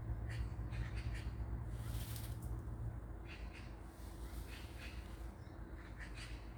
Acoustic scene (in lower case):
park